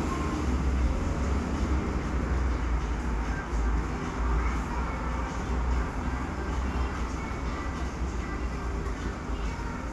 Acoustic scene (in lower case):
cafe